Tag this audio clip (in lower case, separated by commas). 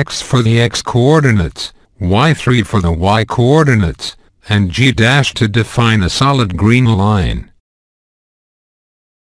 speech synthesizer, speech